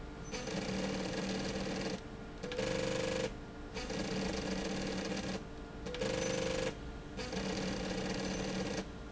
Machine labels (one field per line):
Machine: slide rail